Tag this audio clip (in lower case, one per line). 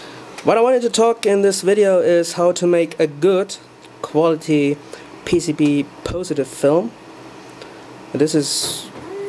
speech